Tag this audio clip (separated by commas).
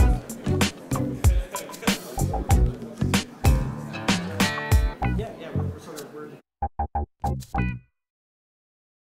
Music, Speech